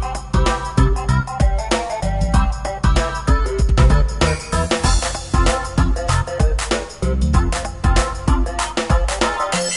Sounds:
music

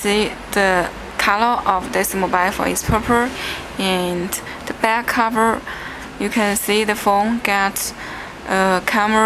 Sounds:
speech

